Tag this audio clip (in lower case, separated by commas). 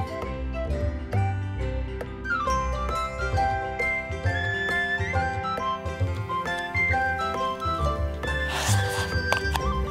music